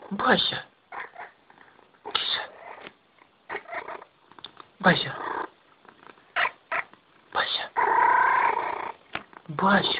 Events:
0.0s-0.6s: man speaking
0.0s-9.9s: background noise
0.9s-1.3s: cat
1.4s-1.8s: surface contact
2.1s-2.4s: man speaking
2.5s-2.8s: cat
3.5s-4.0s: cat
4.2s-4.4s: generic impact sounds
4.4s-4.6s: tick
4.8s-5.1s: man speaking
5.0s-5.4s: cat
5.9s-6.1s: generic impact sounds
6.3s-6.5s: cat
6.7s-6.8s: cat
6.9s-7.0s: generic impact sounds
7.3s-7.7s: man speaking
7.7s-8.9s: cat
9.1s-9.2s: generic impact sounds
9.3s-9.4s: generic impact sounds
9.6s-9.9s: man speaking
9.7s-9.9s: cat

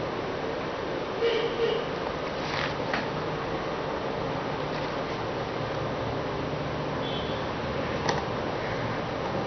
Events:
0.0s-9.4s: mechanisms
1.1s-1.9s: vehicle horn
1.9s-2.7s: generic impact sounds
2.9s-3.1s: generic impact sounds
4.6s-5.2s: generic impact sounds
5.6s-5.8s: generic impact sounds
7.0s-7.5s: vehicle horn
8.0s-8.2s: generic impact sounds
9.1s-9.3s: generic impact sounds

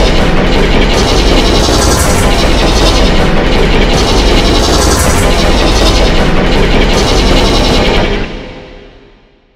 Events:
0.0s-9.5s: sound effect

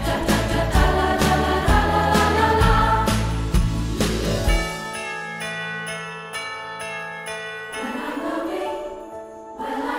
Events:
0.0s-3.3s: choir
0.0s-9.9s: music
7.7s-9.0s: choir
9.6s-9.9s: choir

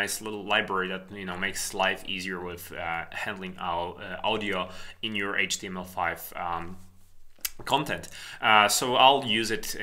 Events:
0.0s-4.6s: male speech
0.0s-9.8s: background noise
4.6s-5.0s: breathing
5.0s-6.8s: male speech
6.5s-7.1s: surface contact
7.3s-7.5s: clicking
7.6s-8.1s: male speech
8.1s-8.4s: breathing
8.4s-9.8s: male speech

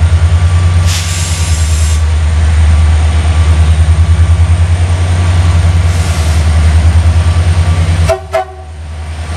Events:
0.0s-9.3s: train
0.9s-1.9s: steam
5.9s-6.7s: steam
8.1s-8.2s: train horn
8.3s-8.5s: train horn

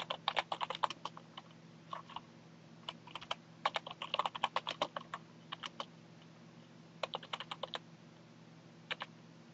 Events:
0.0s-0.2s: computer keyboard
0.0s-9.5s: mechanisms
0.3s-1.2s: computer keyboard
1.3s-1.6s: computer keyboard
1.9s-2.2s: computer keyboard
2.9s-2.9s: computer keyboard
3.1s-3.4s: computer keyboard
3.7s-5.2s: computer keyboard
5.5s-5.7s: computer keyboard
5.8s-5.9s: computer keyboard
6.2s-6.3s: clicking
6.6s-6.7s: generic impact sounds
7.0s-7.8s: computer keyboard
8.2s-8.2s: generic impact sounds
8.9s-9.1s: computer keyboard

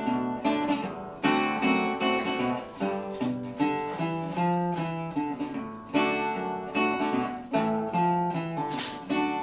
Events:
0.0s-9.4s: background noise
0.0s-9.4s: music

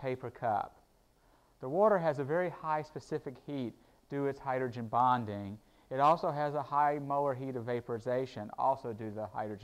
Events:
0.0s-0.7s: man speaking
0.0s-9.6s: background noise
1.1s-1.5s: breathing
1.6s-3.7s: man speaking
3.7s-4.0s: breathing
4.1s-5.5s: man speaking
5.6s-5.8s: breathing
5.9s-9.6s: man speaking

